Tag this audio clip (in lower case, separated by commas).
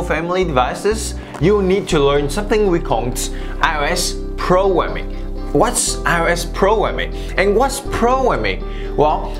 speech, music